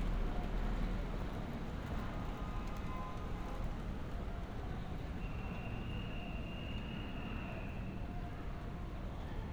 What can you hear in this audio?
car horn